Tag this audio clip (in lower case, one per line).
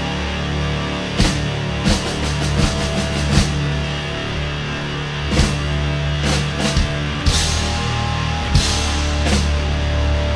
punk rock